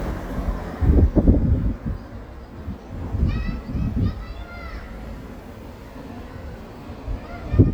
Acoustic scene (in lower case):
residential area